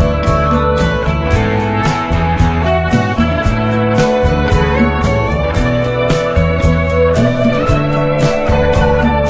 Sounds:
Music

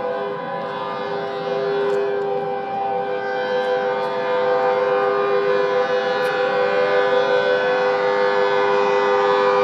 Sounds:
Siren

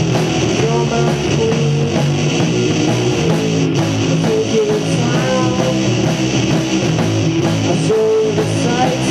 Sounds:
Music

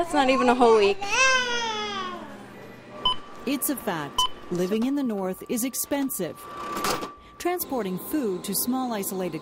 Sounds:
Giggle

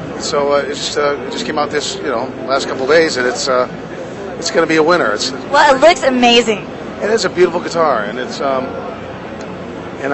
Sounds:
Speech

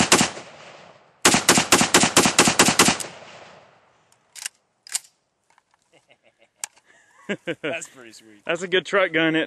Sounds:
machine gun shooting

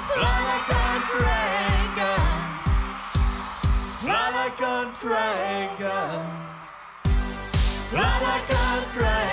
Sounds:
Music

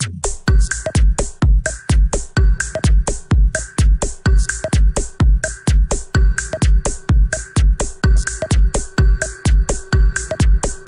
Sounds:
Music, Dubstep, House music

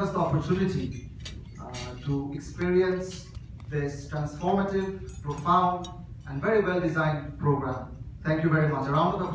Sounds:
Speech, man speaking, monologue

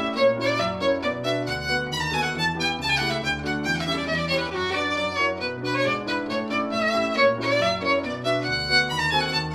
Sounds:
Violin, Musical instrument, Music

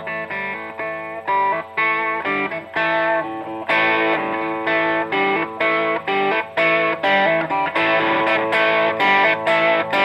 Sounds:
Music

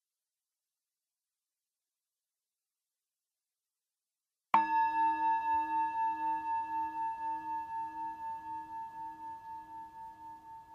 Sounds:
singing bowl

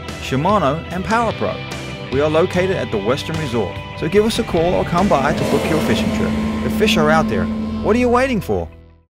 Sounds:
Speech, Music

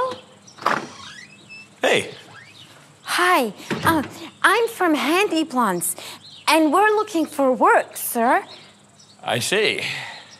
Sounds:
outside, rural or natural, Speech

